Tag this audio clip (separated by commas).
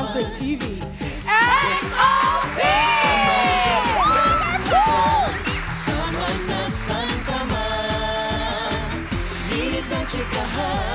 Music of Asia, Singing, Music